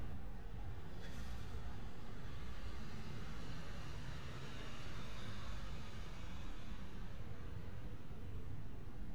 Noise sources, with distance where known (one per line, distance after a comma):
medium-sounding engine, far